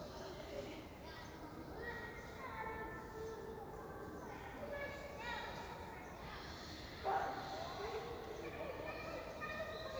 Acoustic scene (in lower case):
park